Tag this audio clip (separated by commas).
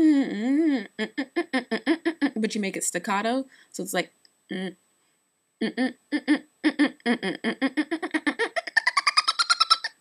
Speech